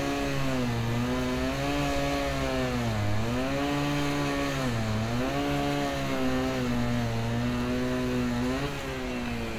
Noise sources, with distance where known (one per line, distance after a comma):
unidentified powered saw, near